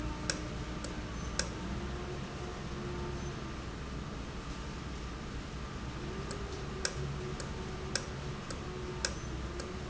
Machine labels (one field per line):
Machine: valve